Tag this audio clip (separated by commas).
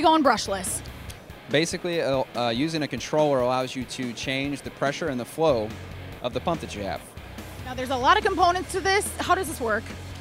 Speech, Music